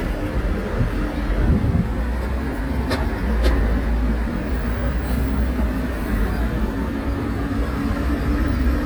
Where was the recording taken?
on a street